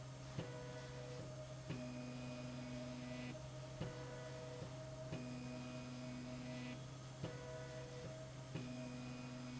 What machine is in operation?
slide rail